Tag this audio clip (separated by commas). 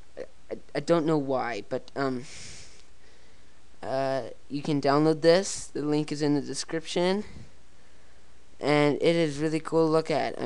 Speech